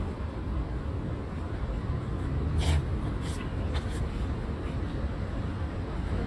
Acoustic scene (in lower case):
residential area